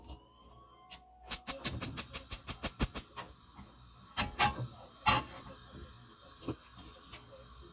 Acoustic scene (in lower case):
kitchen